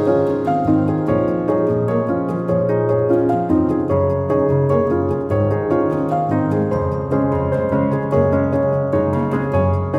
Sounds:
Music

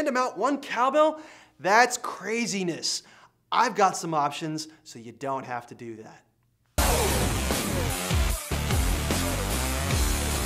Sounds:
Music, Speech

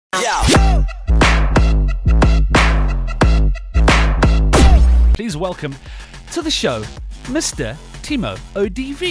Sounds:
Speech, Music

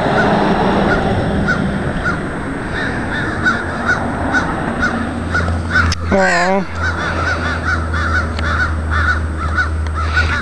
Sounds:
crow cawing

